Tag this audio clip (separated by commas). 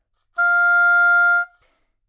Music, Musical instrument, Wind instrument